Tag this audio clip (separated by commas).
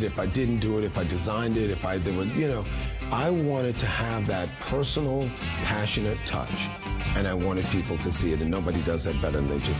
Plucked string instrument, Musical instrument, Speech, Electric guitar, Music